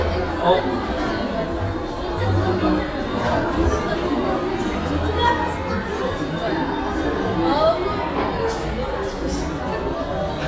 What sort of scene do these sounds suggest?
cafe